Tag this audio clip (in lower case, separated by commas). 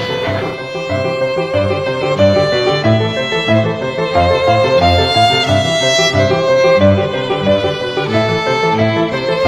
music, violin